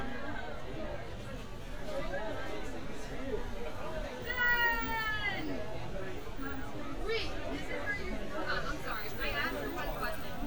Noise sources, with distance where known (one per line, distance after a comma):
person or small group talking, near
unidentified human voice, near